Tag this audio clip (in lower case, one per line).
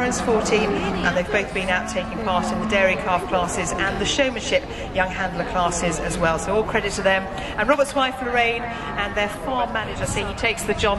speech